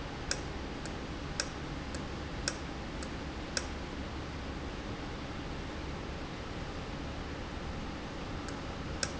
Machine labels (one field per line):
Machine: valve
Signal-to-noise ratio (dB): -6 dB